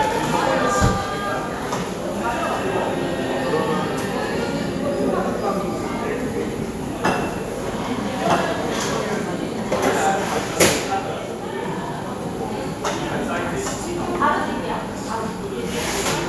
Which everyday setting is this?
cafe